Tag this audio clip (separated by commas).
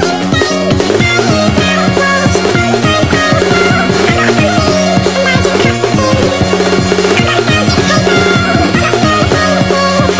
Music